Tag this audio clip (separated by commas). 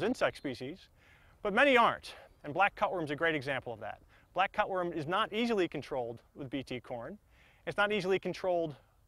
Speech